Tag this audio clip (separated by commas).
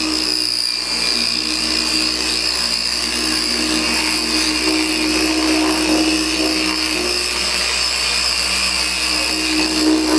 inside a small room, Power tool, Tools